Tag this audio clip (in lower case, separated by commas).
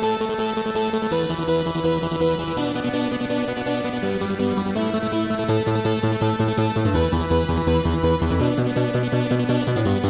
music